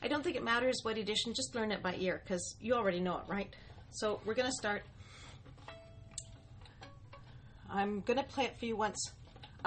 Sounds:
speech, fiddle, music, musical instrument

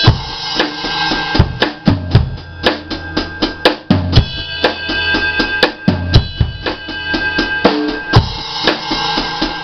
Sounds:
music, musical instrument, drum kit

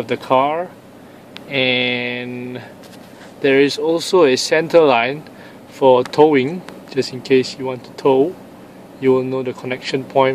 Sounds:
speech

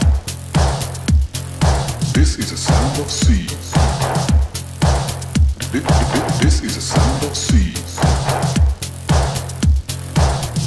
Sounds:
sound effect, basketball bounce, music

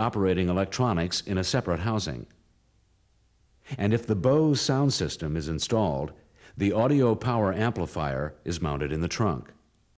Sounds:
speech

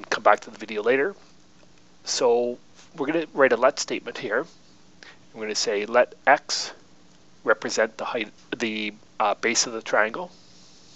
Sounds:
speech

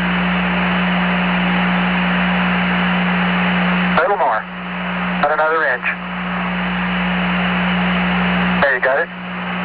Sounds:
speech

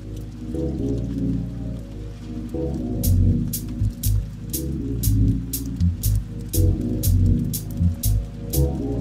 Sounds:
music, raindrop

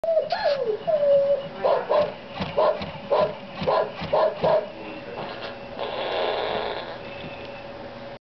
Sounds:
speech, yip

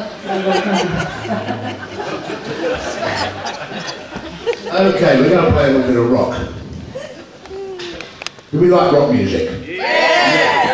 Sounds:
speech

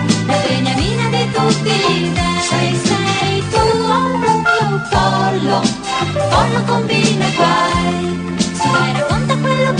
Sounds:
drum, bass drum, music, musical instrument, drum kit

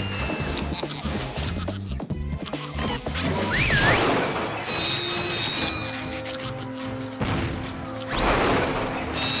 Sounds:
music

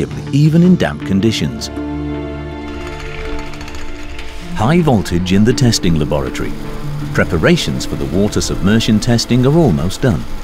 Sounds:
speech, music

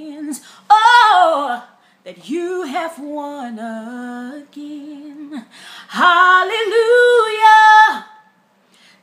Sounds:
female singing

